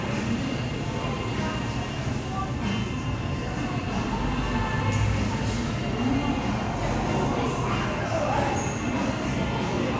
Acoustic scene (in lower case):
crowded indoor space